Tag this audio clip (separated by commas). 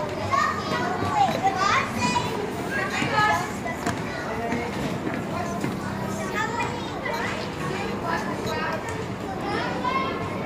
Children playing, inside a small room, Speech